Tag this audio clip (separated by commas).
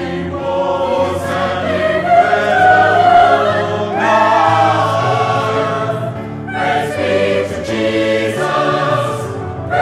Choir, Music